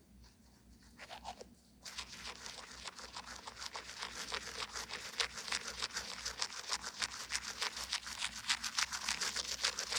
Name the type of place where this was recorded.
restroom